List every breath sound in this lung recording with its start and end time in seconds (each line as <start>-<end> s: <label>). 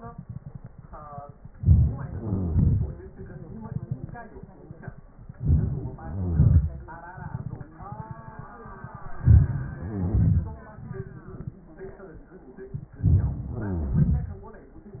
1.57-2.09 s: inhalation
2.08-2.98 s: exhalation
2.09-2.53 s: crackles
5.38-5.97 s: inhalation
5.97-6.70 s: crackles
5.97-7.17 s: exhalation
9.17-9.84 s: inhalation
9.50-10.46 s: crackles
9.84-11.61 s: exhalation
12.94-13.50 s: inhalation
13.38-14.20 s: crackles
13.51-14.63 s: exhalation